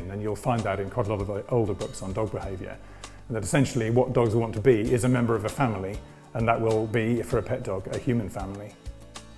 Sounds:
Speech, Music

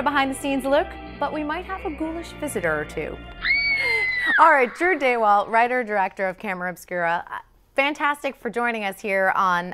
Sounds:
Speech

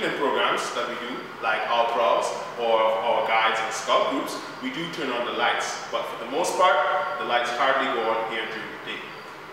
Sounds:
Speech

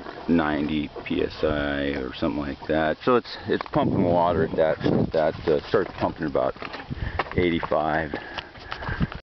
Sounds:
Speech

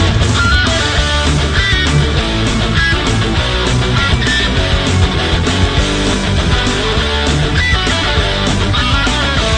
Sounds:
Music

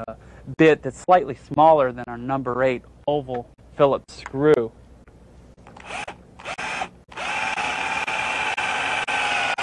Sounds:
Speech

